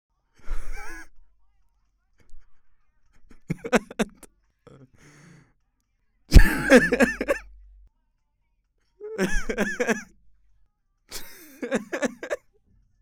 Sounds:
human voice, laughter

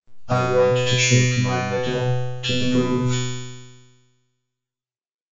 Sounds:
human voice, speech synthesizer, speech

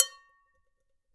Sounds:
domestic sounds, dishes, pots and pans

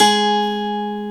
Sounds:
plucked string instrument, guitar, musical instrument, music

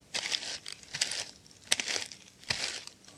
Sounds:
walk

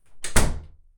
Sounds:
slam, home sounds, door

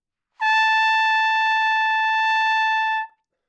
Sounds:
brass instrument, trumpet, musical instrument, music

